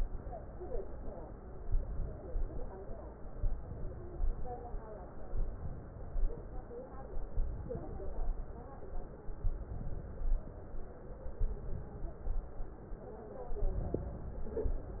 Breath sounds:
1.52-2.28 s: inhalation
2.28-2.94 s: exhalation
3.36-4.12 s: inhalation
4.12-4.77 s: exhalation
5.30-5.95 s: inhalation
5.95-6.67 s: exhalation
7.26-7.88 s: inhalation
7.88-8.61 s: exhalation
9.44-10.07 s: inhalation
10.07-10.66 s: exhalation
11.40-12.10 s: inhalation
12.10-12.77 s: exhalation
13.55-14.25 s: inhalation
14.25-15.00 s: exhalation

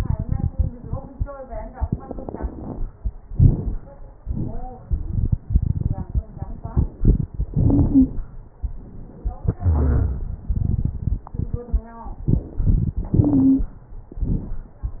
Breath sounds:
2.18-2.76 s: inhalation
2.18-2.76 s: crackles
3.26-3.84 s: exhalation
3.26-3.84 s: crackles
7.53-8.17 s: wheeze
9.58-10.22 s: wheeze
13.11-13.69 s: inhalation
13.20-13.68 s: wheeze
14.15-14.72 s: exhalation
14.15-14.72 s: crackles

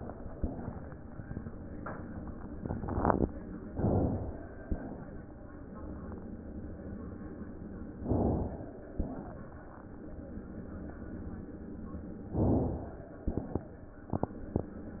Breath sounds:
3.67-4.64 s: inhalation
4.61-5.35 s: exhalation
7.98-8.94 s: inhalation
8.89-9.68 s: wheeze
8.91-10.05 s: exhalation
12.26-13.19 s: inhalation
13.18-14.07 s: crackles
13.20-14.07 s: exhalation
13.48-14.07 s: wheeze

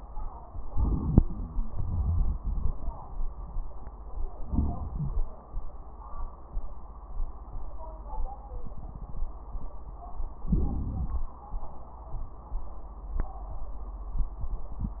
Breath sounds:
0.68-1.60 s: inhalation
0.68-1.60 s: crackles
1.66-2.76 s: exhalation
4.45-5.30 s: inhalation
4.45-5.30 s: crackles
10.47-11.31 s: inhalation

